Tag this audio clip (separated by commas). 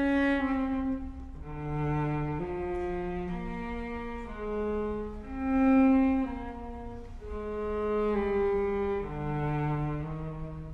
Cello, Music, Musical instrument